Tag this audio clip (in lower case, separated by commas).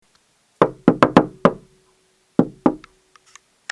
door, home sounds, knock, wood